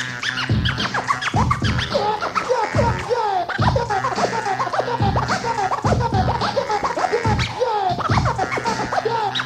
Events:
[0.00, 9.45] music

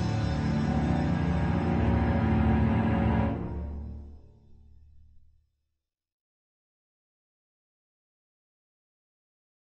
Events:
[0.00, 5.79] music

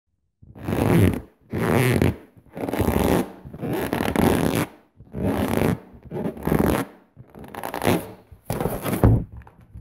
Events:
[0.09, 9.80] background noise
[0.43, 1.26] sound effect
[1.48, 2.17] sound effect
[2.46, 3.23] sound effect
[3.47, 4.68] sound effect
[5.11, 5.78] sound effect
[6.04, 6.89] sound effect
[7.15, 8.15] sound effect
[8.47, 9.27] sound effect
[8.98, 9.14] generic impact sounds
[9.40, 9.80] sound effect

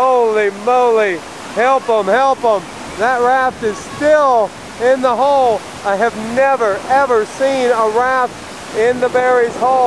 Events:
[0.00, 0.46] male speech
[0.00, 9.85] stream
[0.00, 9.85] wind
[0.63, 1.16] male speech
[1.42, 2.09] female speech
[1.51, 2.67] male speech
[2.61, 3.04] female speech
[2.96, 3.48] male speech
[3.39, 4.17] wind noise (microphone)
[3.61, 4.50] male speech
[3.62, 4.05] female speech
[4.75, 5.60] male speech
[5.81, 8.31] male speech
[8.65, 9.85] male speech
[8.72, 9.85] wind noise (microphone)

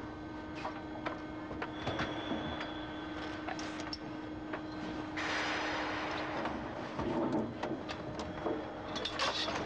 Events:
[0.00, 9.65] mechanisms
[0.51, 0.67] generic impact sounds
[1.00, 1.26] generic impact sounds
[1.56, 2.17] generic impact sounds
[2.56, 2.73] generic impact sounds
[3.12, 3.37] generic impact sounds
[3.58, 4.06] generic impact sounds
[4.51, 4.65] generic impact sounds
[6.08, 6.21] generic impact sounds
[6.33, 6.54] generic impact sounds
[6.86, 7.37] generic impact sounds
[7.58, 7.69] generic impact sounds
[7.83, 7.95] generic impact sounds
[8.12, 8.28] generic impact sounds
[8.91, 9.65] generic impact sounds

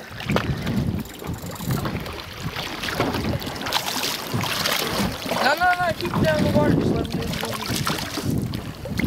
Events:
[0.00, 9.05] splatter
[0.22, 1.05] wind noise (microphone)
[1.21, 2.05] wind noise (microphone)
[4.30, 4.48] wind noise (microphone)
[4.95, 5.14] wind noise (microphone)
[5.24, 7.69] man speaking
[5.90, 9.05] wind noise (microphone)

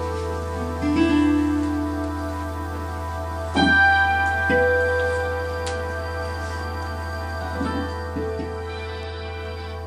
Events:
[0.00, 9.85] mechanisms
[0.00, 9.85] music
[1.58, 1.69] generic impact sounds
[1.98, 2.04] generic impact sounds
[4.18, 4.30] generic impact sounds
[4.89, 5.19] surface contact
[4.95, 5.03] generic impact sounds
[5.61, 5.72] generic impact sounds
[6.31, 6.63] surface contact

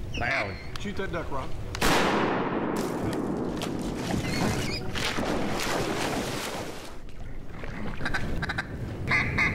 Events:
[0.00, 1.80] wind
[0.06, 0.69] bird vocalization
[0.10, 0.60] man speaking
[0.67, 0.82] generic impact sounds
[0.83, 1.50] man speaking
[1.68, 1.80] generic impact sounds
[1.80, 3.17] gunshot
[2.70, 2.94] generic impact sounds
[3.07, 3.25] generic impact sounds
[3.56, 3.73] generic impact sounds
[3.98, 4.16] generic impact sounds
[3.98, 4.76] splash
[4.20, 4.80] bird vocalization
[4.90, 7.08] splash
[6.91, 9.54] wind
[6.99, 8.36] water
[7.99, 8.30] honk
[8.41, 8.64] honk

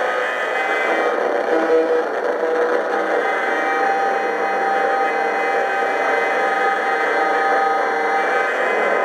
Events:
[0.00, 9.04] mechanisms

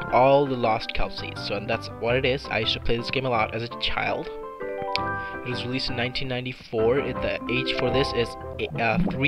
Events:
[0.00, 9.25] video game sound
[0.01, 9.25] music
[0.03, 4.29] male speech
[5.11, 5.41] breathing
[5.44, 8.33] male speech
[8.54, 9.25] male speech

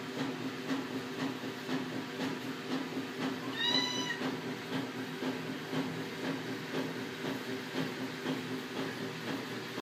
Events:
[0.00, 9.78] mechanisms
[0.13, 0.43] generic impact sounds
[0.64, 0.98] generic impact sounds
[1.14, 1.48] generic impact sounds
[1.62, 1.99] generic impact sounds
[2.12, 2.50] generic impact sounds
[2.67, 3.01] generic impact sounds
[3.17, 3.48] generic impact sounds
[3.48, 4.18] cat
[3.72, 4.03] generic impact sounds
[4.22, 4.50] generic impact sounds
[4.69, 5.01] generic impact sounds
[5.20, 5.52] generic impact sounds
[5.72, 6.00] generic impact sounds
[6.20, 6.53] generic impact sounds
[6.71, 7.03] generic impact sounds
[7.17, 7.50] generic impact sounds
[7.73, 8.03] generic impact sounds
[8.21, 8.54] generic impact sounds
[8.71, 9.04] generic impact sounds
[9.22, 9.49] generic impact sounds

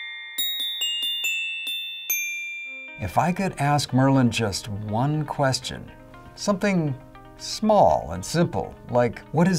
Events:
[0.00, 9.55] music

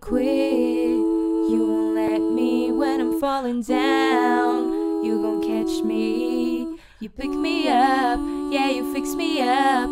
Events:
[0.00, 9.91] choir
[3.25, 3.57] breathing
[6.71, 7.06] breathing

